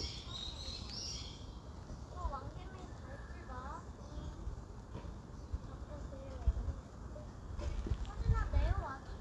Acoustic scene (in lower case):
park